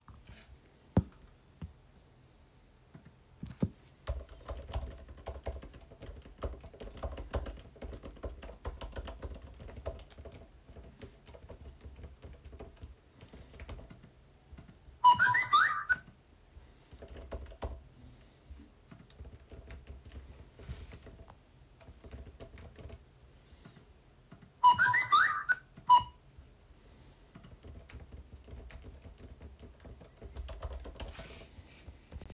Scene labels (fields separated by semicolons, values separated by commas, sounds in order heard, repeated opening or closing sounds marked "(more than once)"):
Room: bedroom; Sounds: keyboard typing, phone ringing